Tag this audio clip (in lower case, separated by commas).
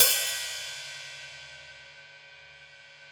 percussion, musical instrument, hi-hat, cymbal, music